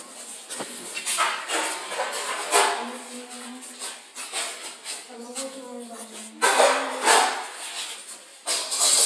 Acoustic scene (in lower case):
kitchen